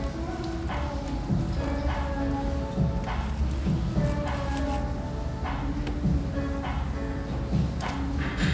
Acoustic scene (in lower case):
restaurant